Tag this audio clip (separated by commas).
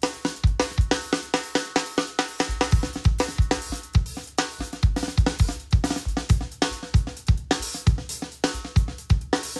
playing snare drum